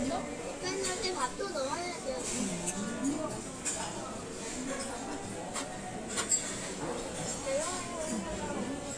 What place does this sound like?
restaurant